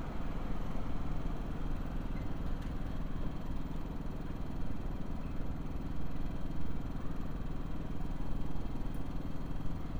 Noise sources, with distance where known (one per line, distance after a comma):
engine of unclear size, far